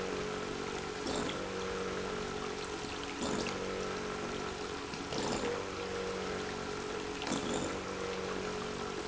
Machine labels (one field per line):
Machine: pump